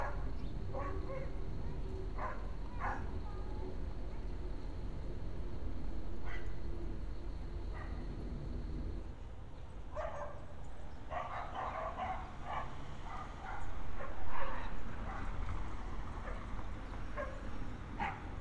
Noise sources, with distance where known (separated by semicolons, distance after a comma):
dog barking or whining